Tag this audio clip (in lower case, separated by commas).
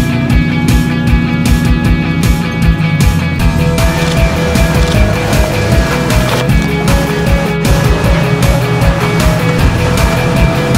music, car, vehicle